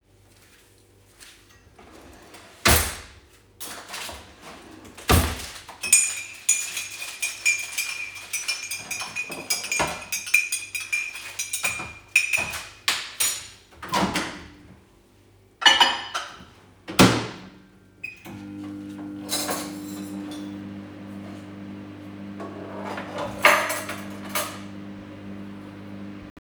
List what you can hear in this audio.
wardrobe or drawer, cutlery and dishes, microwave